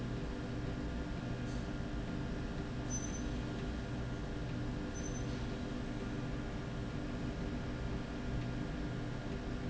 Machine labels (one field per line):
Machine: slide rail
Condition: normal